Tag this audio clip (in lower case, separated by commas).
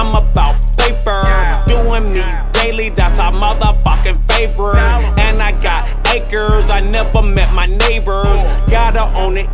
music